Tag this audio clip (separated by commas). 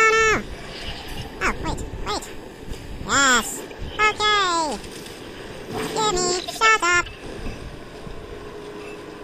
Speech